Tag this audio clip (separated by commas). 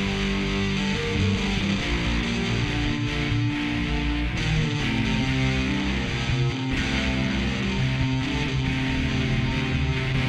Music